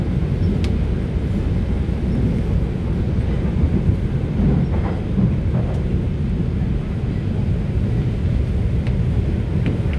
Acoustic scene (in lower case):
subway train